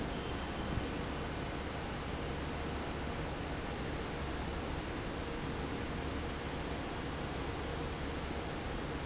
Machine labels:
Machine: fan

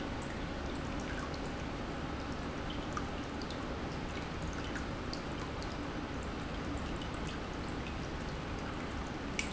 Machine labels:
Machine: pump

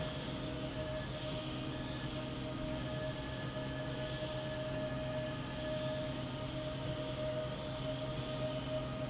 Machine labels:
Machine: slide rail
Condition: normal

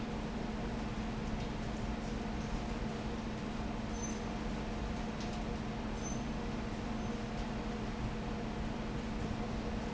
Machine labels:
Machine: fan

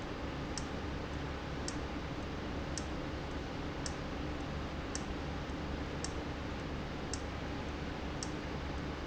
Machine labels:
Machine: valve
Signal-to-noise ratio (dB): -6 dB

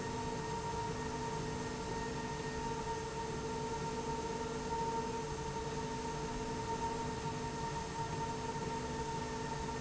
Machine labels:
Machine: slide rail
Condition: normal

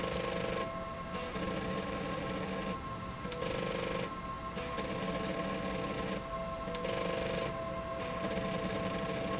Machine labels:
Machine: slide rail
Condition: abnormal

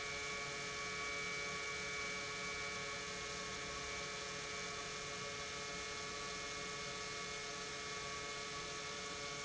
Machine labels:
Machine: pump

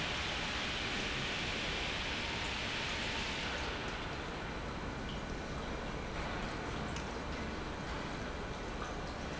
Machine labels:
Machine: pump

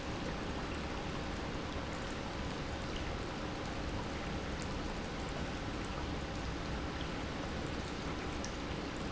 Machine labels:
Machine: pump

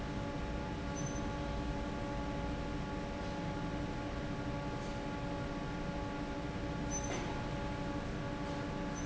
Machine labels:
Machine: fan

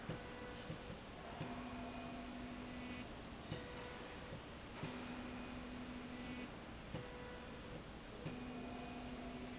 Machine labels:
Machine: slide rail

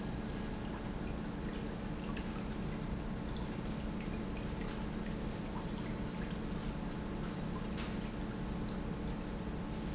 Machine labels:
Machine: pump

